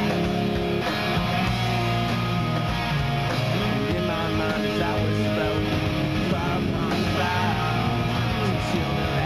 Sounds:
singing

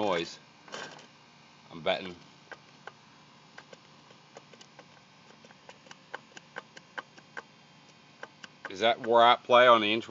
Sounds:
speech

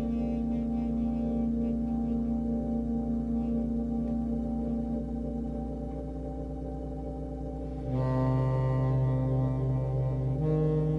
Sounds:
music

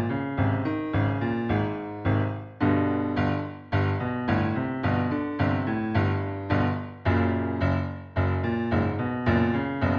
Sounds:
music

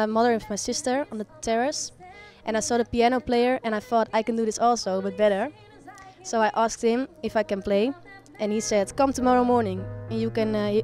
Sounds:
music
speech

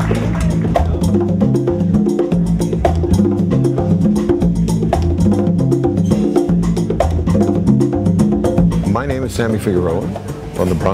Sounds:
music
speech

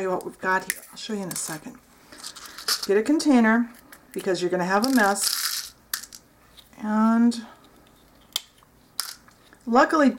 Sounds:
speech
inside a small room

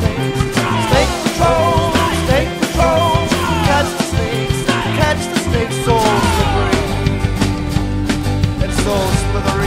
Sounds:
music

